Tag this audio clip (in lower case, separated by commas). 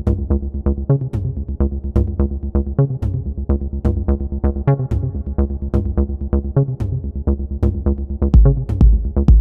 techno, electronic music, music